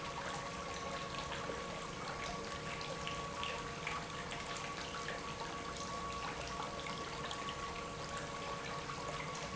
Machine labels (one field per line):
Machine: pump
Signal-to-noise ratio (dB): 0 dB